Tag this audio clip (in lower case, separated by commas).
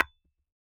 tap, glass